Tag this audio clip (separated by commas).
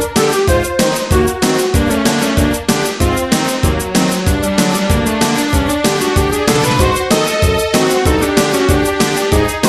Soundtrack music, Music